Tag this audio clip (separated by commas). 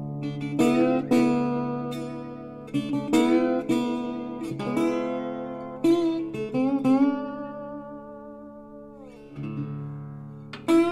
Plucked string instrument, Acoustic guitar, Music, Musical instrument, Guitar, Strum